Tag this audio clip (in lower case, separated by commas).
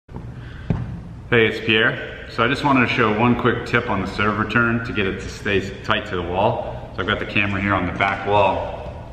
playing squash